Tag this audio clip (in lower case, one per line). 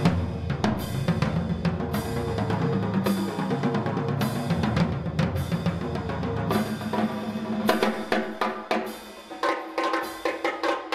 drum roll
bass drum
drum
rimshot
percussion
snare drum
drum kit